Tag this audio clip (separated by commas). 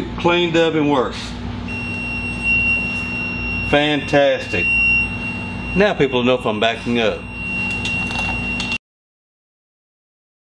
reversing beeps